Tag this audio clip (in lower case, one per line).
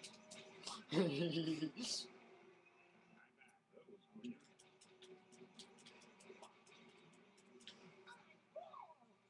speech